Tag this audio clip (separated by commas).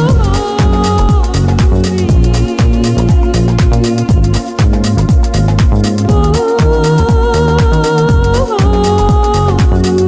Music